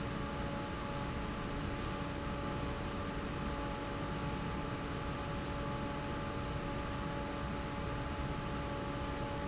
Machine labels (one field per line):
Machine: fan